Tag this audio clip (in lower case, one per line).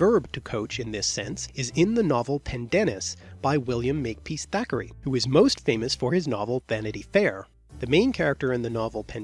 speech
monologue
music